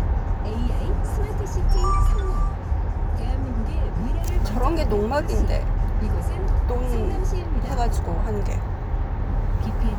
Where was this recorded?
in a car